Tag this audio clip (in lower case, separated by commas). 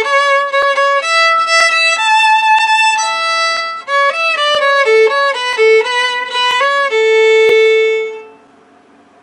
violin, music, musical instrument